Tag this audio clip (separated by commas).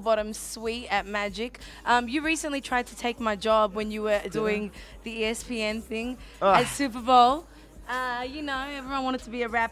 Music, Speech